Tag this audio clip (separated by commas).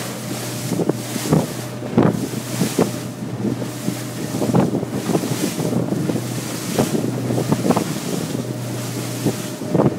Water vehicle, Wind noise (microphone), Wind, Motorboat